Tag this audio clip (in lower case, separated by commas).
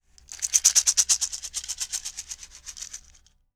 rattle (instrument), musical instrument, rattle, music, percussion